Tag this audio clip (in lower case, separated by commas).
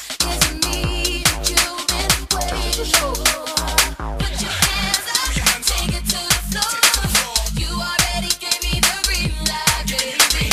music